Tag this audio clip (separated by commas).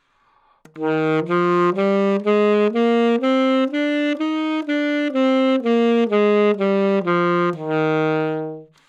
Music, woodwind instrument, Musical instrument